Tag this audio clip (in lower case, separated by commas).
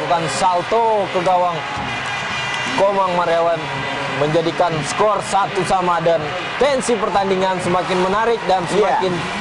speech